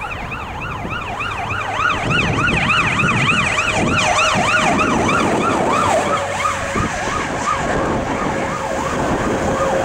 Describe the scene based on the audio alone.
Emergency sirens, vehicles driving